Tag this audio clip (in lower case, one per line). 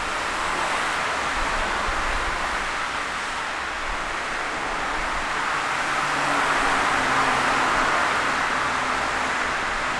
vehicle
roadway noise
motor vehicle (road)